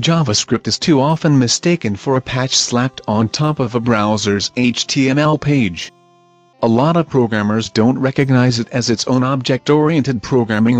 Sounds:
Speech, Music

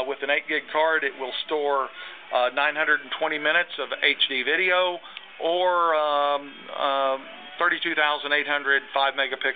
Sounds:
Music, Speech

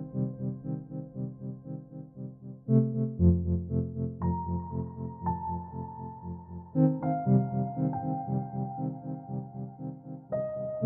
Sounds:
Music, Ambient music

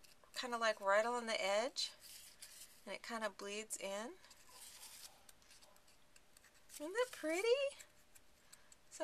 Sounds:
Speech, inside a small room

